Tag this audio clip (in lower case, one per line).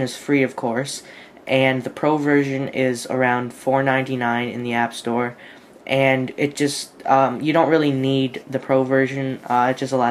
speech